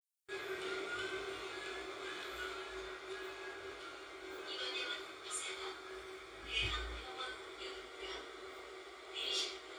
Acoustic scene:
subway train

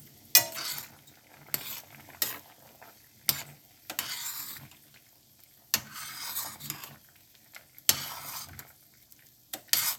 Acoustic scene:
kitchen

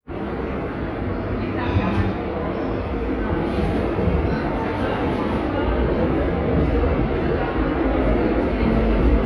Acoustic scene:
subway station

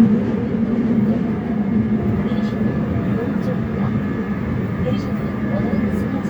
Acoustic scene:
subway train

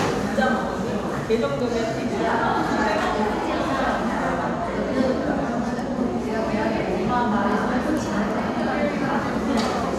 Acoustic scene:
crowded indoor space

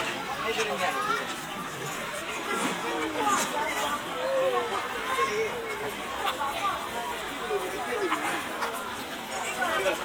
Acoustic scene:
park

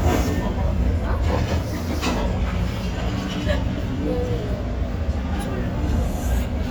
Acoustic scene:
restaurant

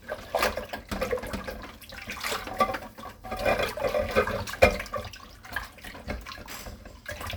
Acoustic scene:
kitchen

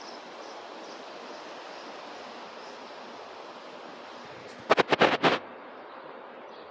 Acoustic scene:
residential area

